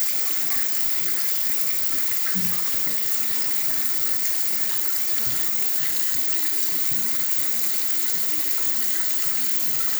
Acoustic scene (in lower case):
restroom